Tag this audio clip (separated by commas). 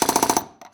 Tools